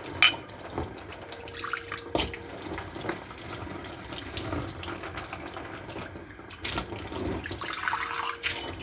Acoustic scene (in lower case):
kitchen